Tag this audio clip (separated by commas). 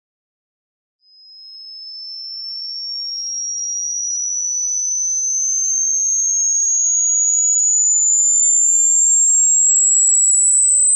mouse squeaking